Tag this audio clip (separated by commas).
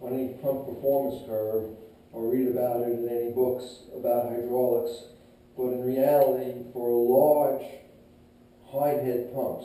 Speech